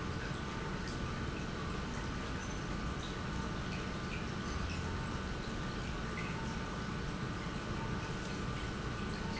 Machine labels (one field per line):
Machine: pump